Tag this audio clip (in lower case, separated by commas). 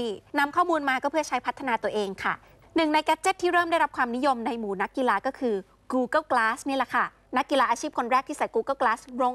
speech